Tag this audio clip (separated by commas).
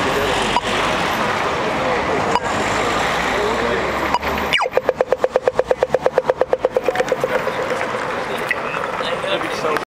Speech